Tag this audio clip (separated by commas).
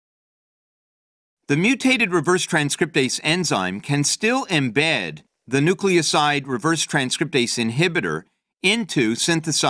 Speech